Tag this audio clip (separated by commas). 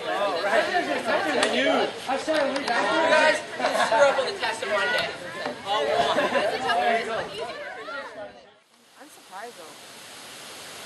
Speech, Chatter